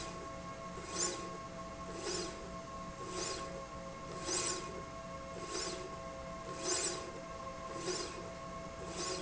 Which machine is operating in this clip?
slide rail